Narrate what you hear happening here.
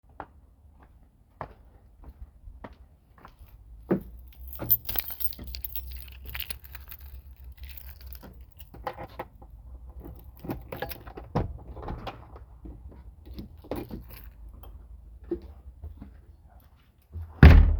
I walked towards the front door. Then i pulled out the key from my pocket and opened the door and closed it behind me.